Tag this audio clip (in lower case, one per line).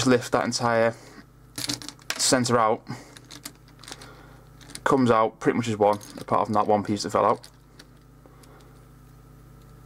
crunch